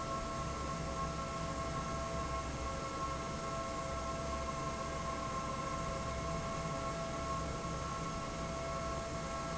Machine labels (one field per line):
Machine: fan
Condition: normal